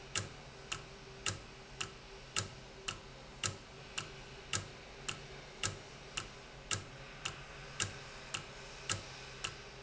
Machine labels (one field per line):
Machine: valve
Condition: normal